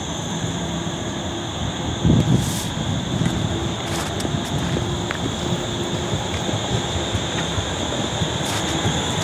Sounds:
vehicle

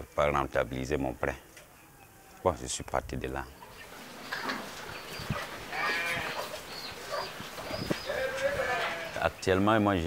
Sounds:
cattle, livestock, moo, cattle mooing

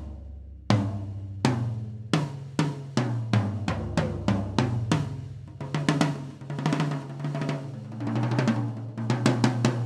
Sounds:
snare drum, playing snare drum, drum roll, bass drum, drum, percussion, rimshot

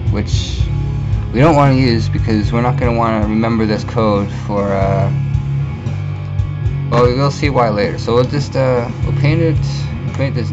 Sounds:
speech, music

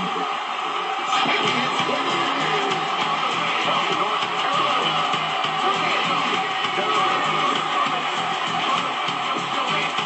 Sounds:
speech, music

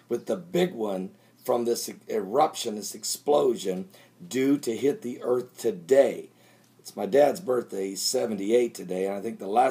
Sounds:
speech

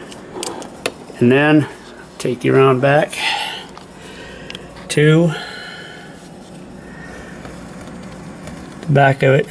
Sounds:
speech

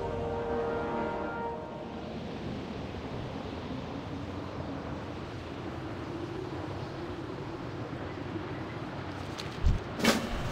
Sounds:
music

